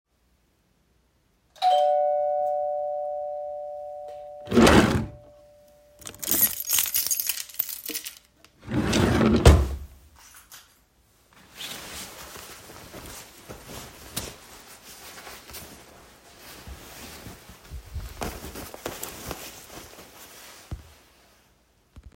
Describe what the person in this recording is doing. The doorbell rang. Then I opened the drawer and took the keychain out and closed the drawer again. Finally I put on my jacket